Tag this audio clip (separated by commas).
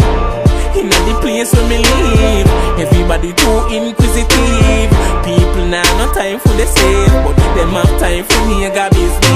Music, Pop music